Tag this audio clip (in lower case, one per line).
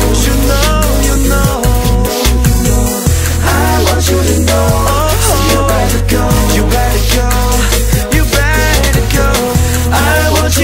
music
pop music